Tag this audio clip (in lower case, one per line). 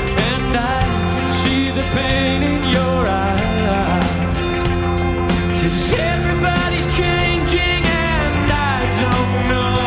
music
singing